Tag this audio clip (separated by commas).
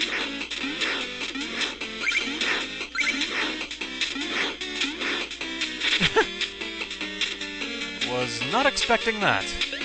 Music, Speech